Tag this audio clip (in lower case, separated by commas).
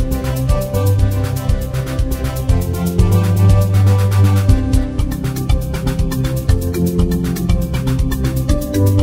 music